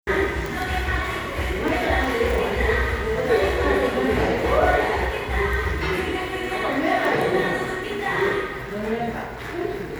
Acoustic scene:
crowded indoor space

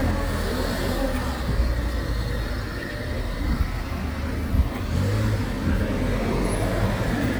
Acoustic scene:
residential area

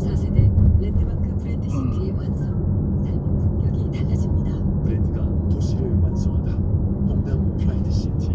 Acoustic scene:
car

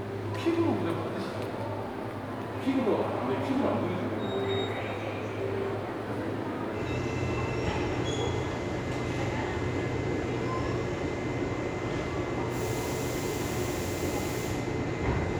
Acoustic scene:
subway station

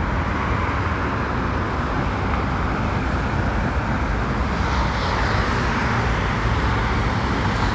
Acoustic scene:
street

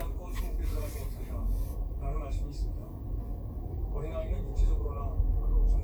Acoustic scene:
car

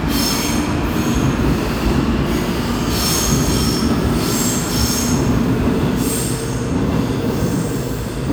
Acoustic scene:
subway station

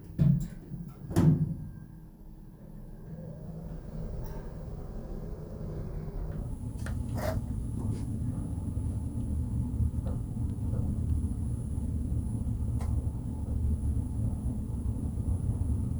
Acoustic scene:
elevator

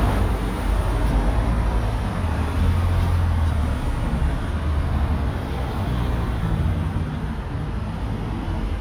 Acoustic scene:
street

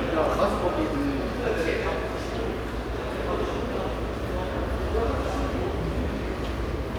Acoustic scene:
subway station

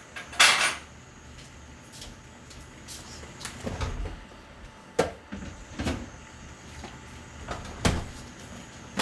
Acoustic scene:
kitchen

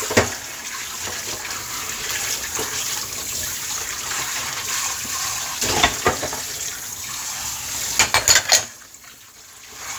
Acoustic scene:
kitchen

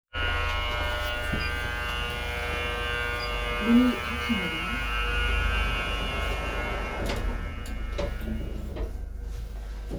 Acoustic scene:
elevator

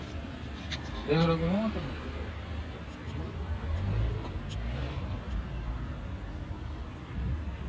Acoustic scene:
residential area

